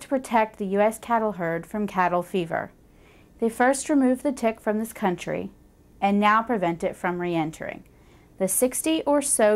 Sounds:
speech

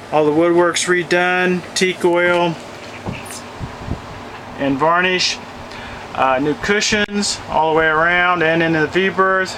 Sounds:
speech

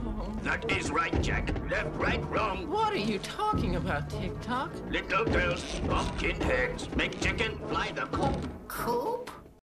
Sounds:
speech

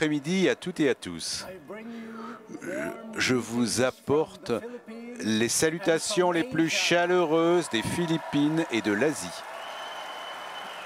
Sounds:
speech

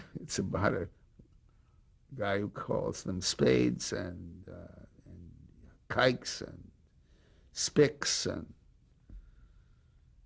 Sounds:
speech

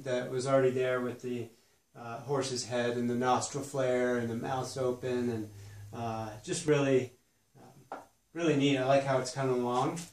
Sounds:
speech

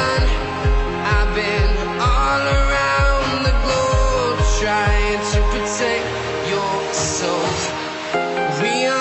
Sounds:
music

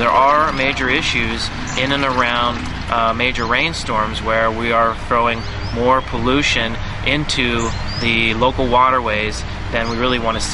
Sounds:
speech

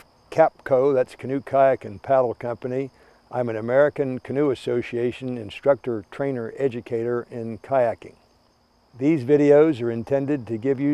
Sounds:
speech

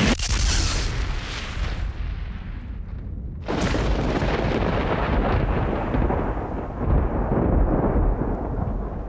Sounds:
outside, rural or natural

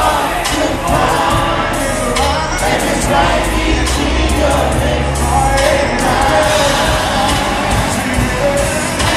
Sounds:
folk music
music

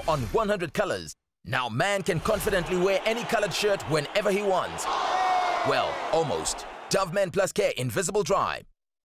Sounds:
speech

